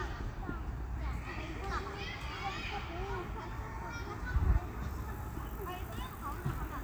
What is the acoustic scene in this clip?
park